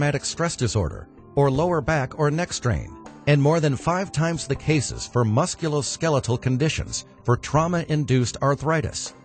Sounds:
Speech, Music

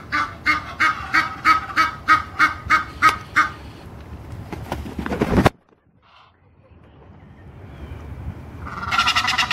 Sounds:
goose honking

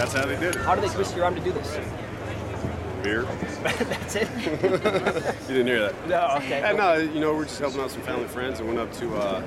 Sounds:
Speech

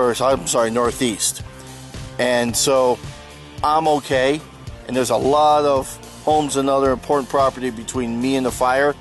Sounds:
Music, Speech

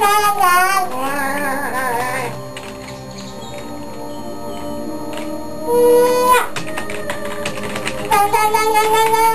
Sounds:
Music, Child singing

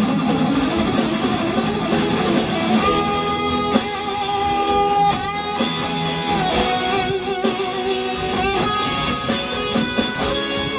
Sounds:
Acoustic guitar, Music, Musical instrument, Guitar

